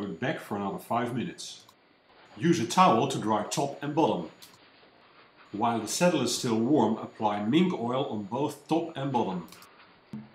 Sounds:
Speech

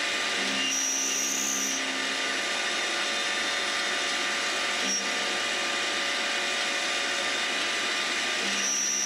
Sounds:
Tools

